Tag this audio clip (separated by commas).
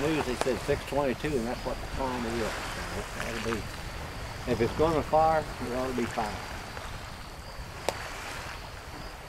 Speech